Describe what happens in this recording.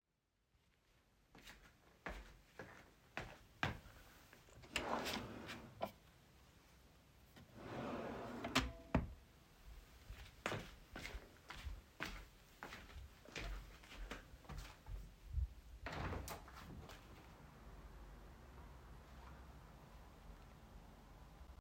I was in my bedroom and opened a drawer to put some socks into it. Then I closed the drawer and walked to the window. I opened the window.